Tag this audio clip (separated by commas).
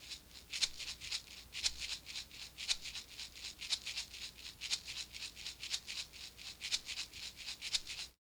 Rattle (instrument), Musical instrument, Percussion, Music